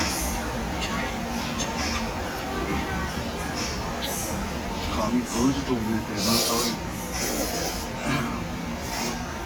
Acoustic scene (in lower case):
restaurant